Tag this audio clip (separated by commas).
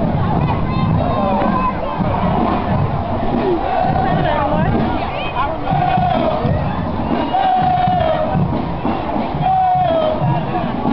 Music, Speech